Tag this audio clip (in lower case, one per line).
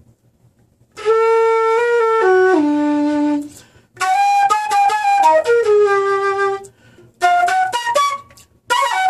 musical instrument
flute
music